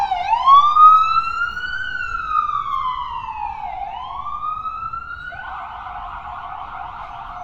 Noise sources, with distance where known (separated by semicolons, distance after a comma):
siren, near